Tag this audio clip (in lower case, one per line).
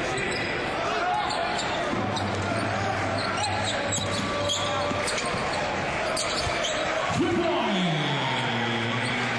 basketball bounce